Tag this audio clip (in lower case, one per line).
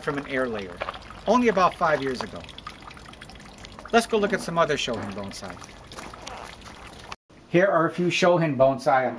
speech
pour